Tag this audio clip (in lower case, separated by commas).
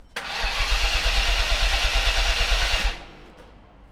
engine, vehicle